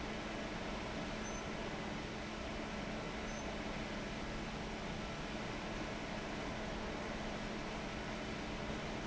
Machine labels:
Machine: fan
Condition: abnormal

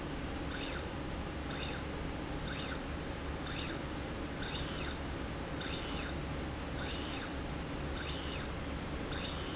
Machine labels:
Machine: slide rail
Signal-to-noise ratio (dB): -6 dB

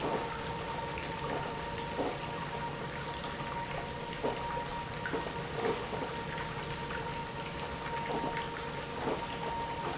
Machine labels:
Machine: pump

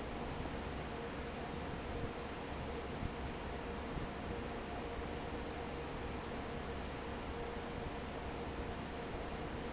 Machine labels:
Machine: fan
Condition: normal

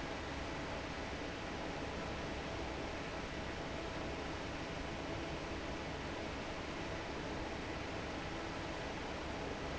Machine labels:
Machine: fan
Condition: normal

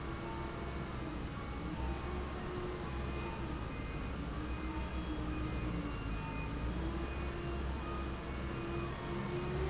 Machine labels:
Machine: fan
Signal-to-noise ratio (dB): -6 dB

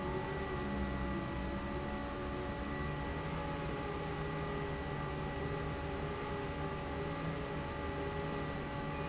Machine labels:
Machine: fan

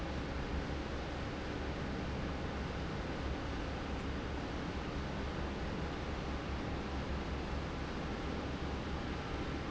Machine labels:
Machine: fan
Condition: normal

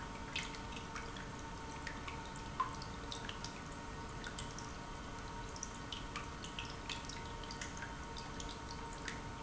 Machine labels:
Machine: pump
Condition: normal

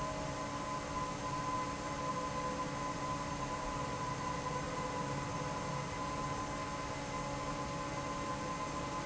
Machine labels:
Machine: fan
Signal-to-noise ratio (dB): -6 dB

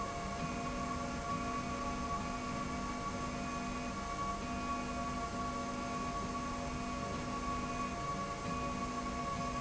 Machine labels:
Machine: slide rail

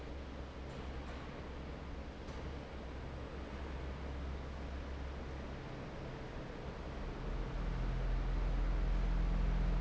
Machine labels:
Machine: fan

